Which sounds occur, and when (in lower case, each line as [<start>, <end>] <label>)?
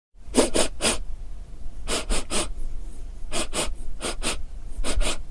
[0.14, 5.30] mechanisms
[0.34, 0.71] sound effect
[0.81, 1.00] sound effect
[1.86, 2.49] sound effect
[3.33, 3.71] sound effect
[4.02, 4.39] sound effect
[4.84, 5.19] sound effect